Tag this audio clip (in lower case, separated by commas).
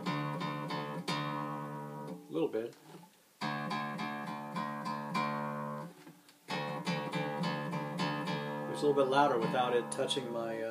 guitar, strum, bowed string instrument, music, musical instrument, plucked string instrument